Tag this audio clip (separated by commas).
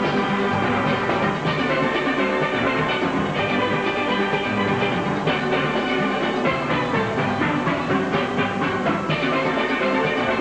playing steelpan